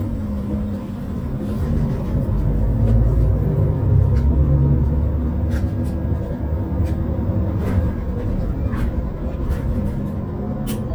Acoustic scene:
bus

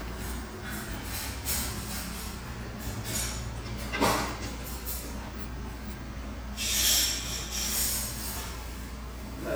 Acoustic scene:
restaurant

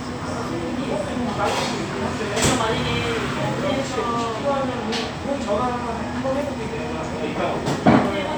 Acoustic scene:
cafe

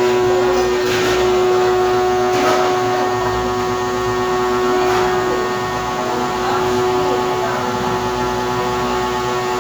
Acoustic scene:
cafe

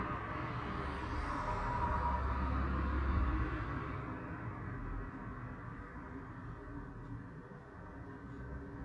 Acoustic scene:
street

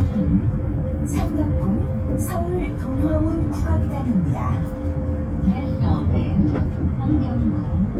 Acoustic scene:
bus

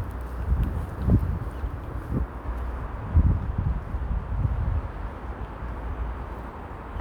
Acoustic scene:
residential area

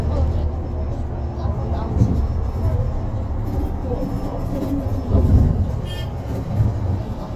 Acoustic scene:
bus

